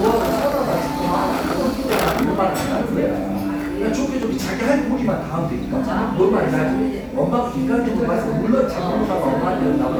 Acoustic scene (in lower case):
cafe